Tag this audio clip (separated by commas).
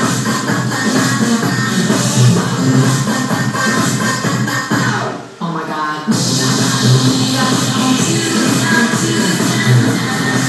Sound effect, Music